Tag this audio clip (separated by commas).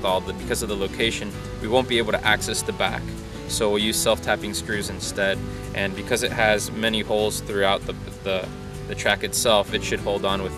Music, Speech